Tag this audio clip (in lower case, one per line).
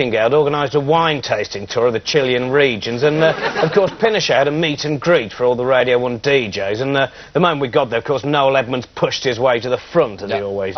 speech